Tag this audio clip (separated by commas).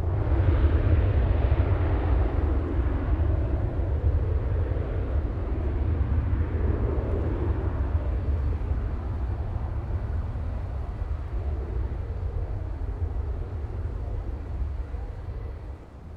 Aircraft, Vehicle